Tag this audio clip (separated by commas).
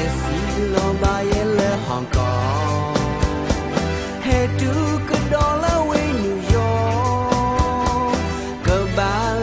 Music